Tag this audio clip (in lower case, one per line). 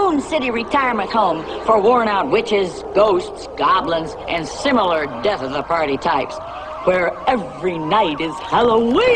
speech